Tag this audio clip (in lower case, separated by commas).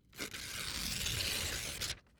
tearing